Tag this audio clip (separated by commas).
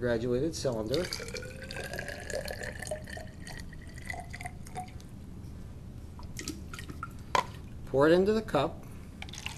Speech, Water, Drip